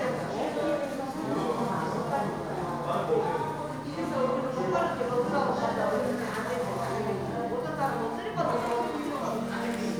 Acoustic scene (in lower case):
crowded indoor space